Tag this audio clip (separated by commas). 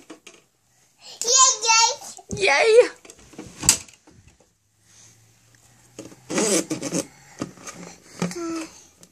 kid speaking, Speech, inside a small room